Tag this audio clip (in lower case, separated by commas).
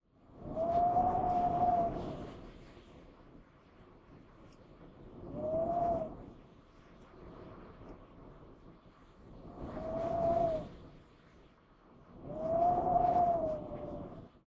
wind